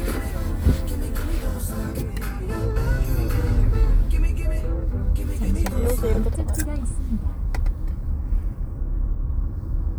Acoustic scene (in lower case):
car